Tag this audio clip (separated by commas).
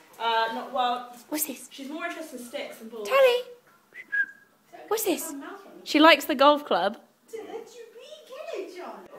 Speech